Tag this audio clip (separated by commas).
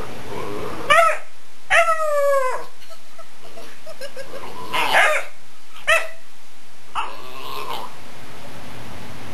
Bark, Dog, Domestic animals, Animal